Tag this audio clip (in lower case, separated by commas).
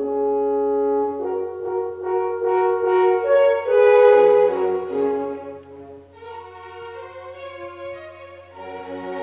brass instrument, music, musical instrument, orchestra